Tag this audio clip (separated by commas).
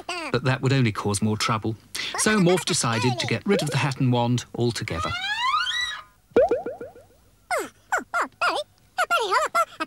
Speech